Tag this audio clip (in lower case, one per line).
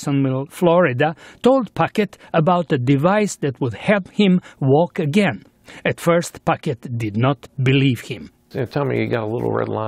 speech